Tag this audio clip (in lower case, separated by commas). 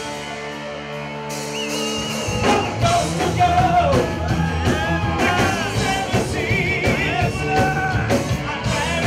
funk, heavy metal, music, progressive rock